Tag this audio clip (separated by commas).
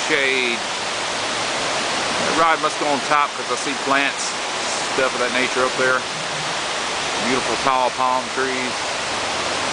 Speech